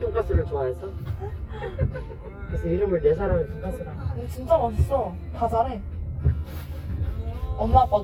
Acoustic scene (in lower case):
car